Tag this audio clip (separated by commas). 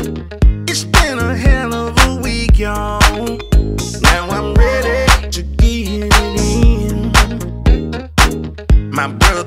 Music